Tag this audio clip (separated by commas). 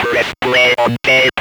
Speech, Human voice